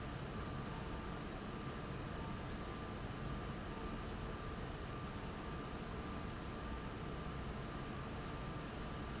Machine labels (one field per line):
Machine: fan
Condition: abnormal